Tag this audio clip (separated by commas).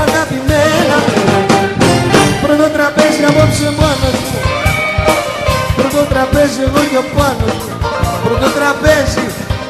Ska